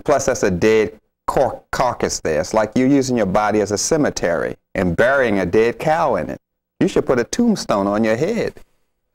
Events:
0.0s-9.1s: conversation
6.8s-8.6s: man speaking

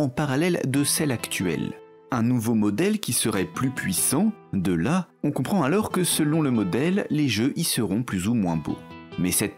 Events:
0.0s-1.8s: man speaking
0.0s-9.5s: music
2.0s-4.3s: man speaking
4.5s-5.0s: man speaking
5.2s-9.5s: man speaking

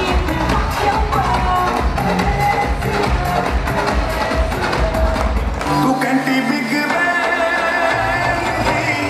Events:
0.0s-9.0s: crowd
0.0s-9.0s: music
0.0s-5.3s: female singing
5.6s-9.0s: male singing

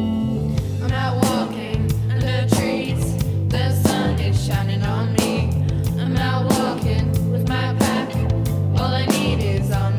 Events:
0.0s-9.9s: music
0.8s-1.9s: female singing
2.0s-3.1s: female singing
3.4s-5.4s: female singing
5.9s-6.9s: female singing
7.4s-8.2s: female singing
8.7s-9.9s: female singing

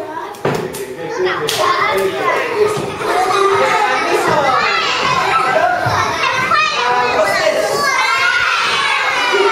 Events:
0.0s-9.5s: child speech
0.0s-9.5s: mechanisms
0.3s-0.8s: clapping
0.4s-0.7s: generic impact sounds
0.5s-2.5s: man speaking
1.1s-9.5s: children shouting
1.5s-1.6s: clapping
1.9s-2.0s: clapping
2.7s-3.0s: generic impact sounds
3.5s-3.8s: generic impact sounds
3.5s-4.9s: man speaking
4.2s-4.5s: generic impact sounds
5.0s-5.3s: generic impact sounds
5.5s-5.9s: shout
5.5s-6.0s: man speaking
5.8s-6.0s: generic impact sounds
6.2s-6.5s: generic impact sounds
6.7s-7.8s: man speaking
6.9s-7.4s: generic impact sounds
7.6s-7.9s: generic impact sounds
8.1s-8.5s: generic impact sounds
8.6s-8.9s: generic impact sounds

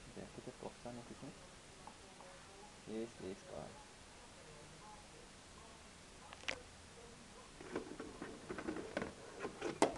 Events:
0.0s-1.3s: man speaking
0.0s-9.9s: background noise
0.0s-9.9s: mechanisms
0.0s-9.9s: television
1.8s-1.9s: generic impact sounds
2.1s-2.2s: generic impact sounds
2.8s-3.0s: man speaking
3.2s-3.7s: man speaking
6.3s-6.5s: generic impact sounds
7.6s-7.8s: generic impact sounds
7.9s-8.1s: generic impact sounds
8.2s-8.3s: generic impact sounds
8.5s-8.8s: generic impact sounds
8.9s-9.0s: generic impact sounds
9.3s-9.4s: generic impact sounds
9.6s-9.7s: generic impact sounds
9.8s-9.9s: generic impact sounds

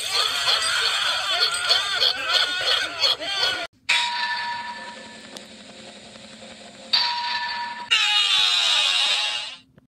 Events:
0.0s-3.7s: animal
0.0s-3.7s: speech babble
3.9s-9.8s: mechanisms
6.1s-6.4s: tick
7.0s-7.9s: doorbell
7.9s-9.7s: shout

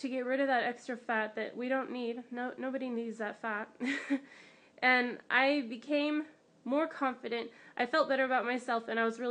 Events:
0.0s-3.6s: woman speaking
0.0s-9.3s: mechanisms
3.8s-4.3s: laughter
4.2s-4.8s: breathing
4.8s-6.3s: woman speaking
6.7s-7.5s: woman speaking
7.5s-7.8s: breathing
7.8s-9.3s: woman speaking

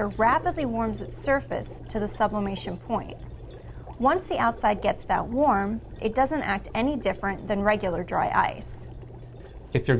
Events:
0.0s-3.2s: woman speaking
0.0s-9.9s: boiling
0.0s-9.9s: gurgling
0.0s-9.9s: mechanisms
3.8s-5.8s: woman speaking
5.9s-8.9s: woman speaking
9.7s-9.9s: male speech

